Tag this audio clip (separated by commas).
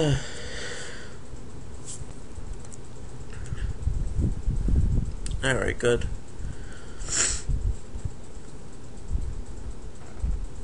Speech